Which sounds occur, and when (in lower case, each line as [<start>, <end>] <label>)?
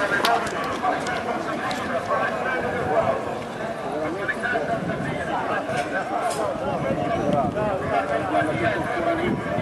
[0.00, 9.61] hubbub
[0.00, 9.61] run
[0.01, 9.61] wind
[0.15, 1.14] generic impact sounds
[1.63, 1.84] generic impact sounds
[2.50, 3.14] wind noise (microphone)
[4.56, 5.22] wind noise (microphone)
[5.66, 5.84] wind noise (microphone)
[5.69, 5.94] generic impact sounds
[6.20, 6.44] generic impact sounds
[6.71, 7.87] wind noise (microphone)
[7.21, 7.66] generic impact sounds
[8.31, 9.61] wind noise (microphone)